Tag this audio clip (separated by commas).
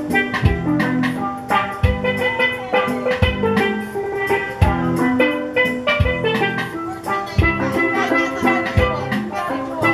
playing steelpan